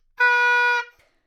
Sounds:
music, wind instrument, musical instrument

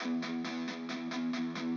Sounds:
electric guitar, music, plucked string instrument, guitar, musical instrument

